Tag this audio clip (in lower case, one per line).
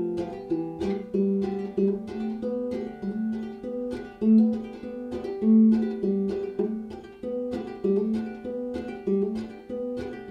music
musical instrument
plucked string instrument
ukulele